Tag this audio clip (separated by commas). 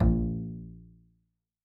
Bowed string instrument, Music, Musical instrument